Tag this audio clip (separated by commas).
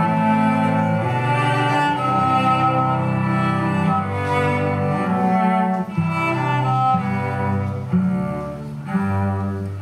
String section